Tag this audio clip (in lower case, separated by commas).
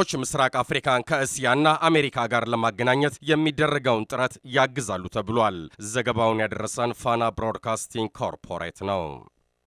speech